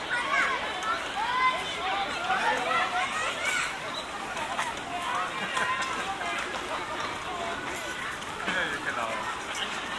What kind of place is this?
park